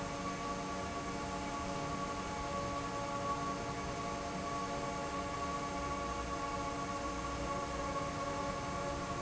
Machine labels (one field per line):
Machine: fan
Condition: normal